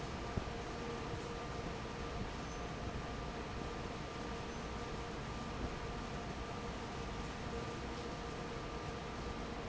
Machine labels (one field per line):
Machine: fan